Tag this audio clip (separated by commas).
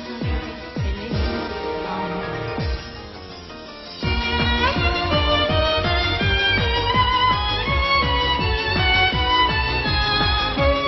Violin, Music, Musical instrument